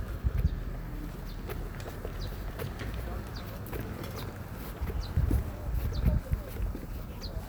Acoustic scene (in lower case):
park